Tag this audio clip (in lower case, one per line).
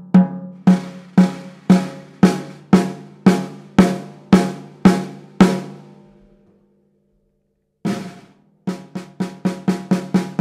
drum kit
playing drum kit
musical instrument
drum
music